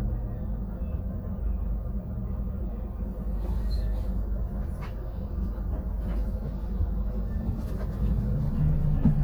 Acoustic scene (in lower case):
bus